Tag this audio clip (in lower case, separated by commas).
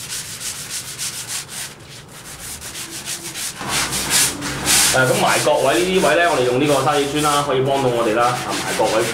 rub, sanding